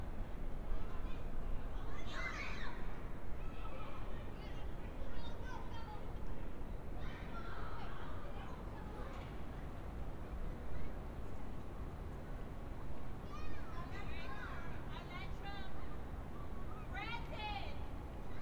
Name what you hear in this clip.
person or small group shouting